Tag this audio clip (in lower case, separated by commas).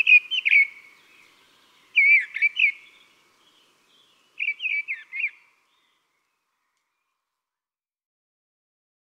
wood thrush calling